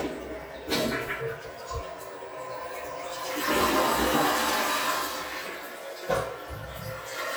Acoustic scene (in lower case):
restroom